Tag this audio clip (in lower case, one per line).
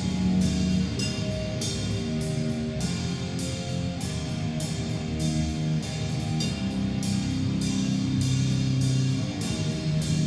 drum kit
music
musical instrument